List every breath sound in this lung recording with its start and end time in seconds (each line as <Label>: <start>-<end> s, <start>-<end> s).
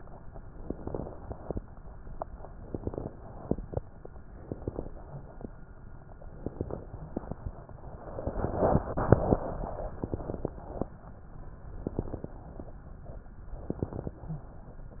Inhalation: 0.67-1.56 s, 2.54-3.44 s, 4.38-4.97 s, 6.36-6.95 s, 10.00-10.59 s, 11.84-12.43 s, 13.64-14.23 s
Crackles: 0.67-1.56 s, 2.54-3.44 s, 4.38-4.97 s, 6.36-6.95 s, 10.00-10.59 s, 11.84-12.43 s, 13.64-14.23 s